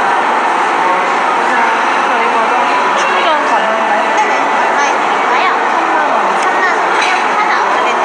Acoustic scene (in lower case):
cafe